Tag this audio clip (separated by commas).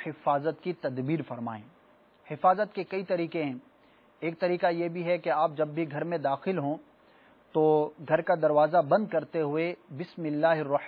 Speech